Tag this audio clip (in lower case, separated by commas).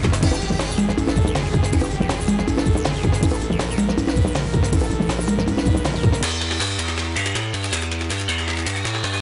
music